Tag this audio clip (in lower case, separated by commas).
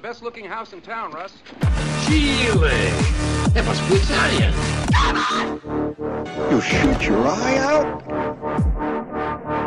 electronic music, dubstep, music, speech